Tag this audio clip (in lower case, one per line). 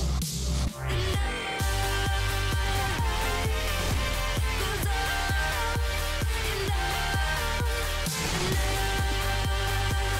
music